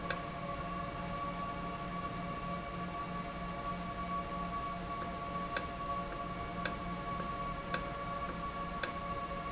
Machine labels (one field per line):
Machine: valve